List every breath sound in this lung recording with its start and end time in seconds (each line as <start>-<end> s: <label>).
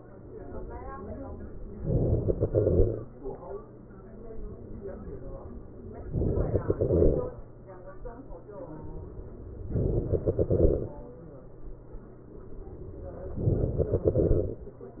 1.83-3.13 s: inhalation
6.13-7.43 s: inhalation
9.61-11.09 s: inhalation
13.31-14.79 s: inhalation